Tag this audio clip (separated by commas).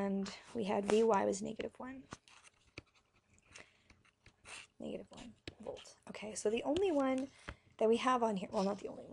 inside a small room, Speech